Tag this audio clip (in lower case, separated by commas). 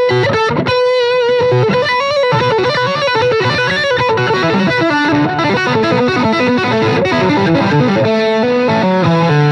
acoustic guitar, guitar, musical instrument, plucked string instrument, music, strum